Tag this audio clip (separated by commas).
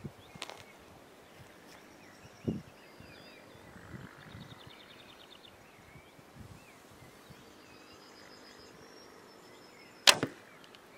Arrow